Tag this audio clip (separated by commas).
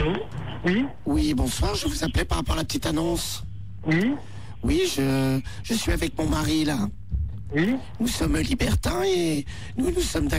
Speech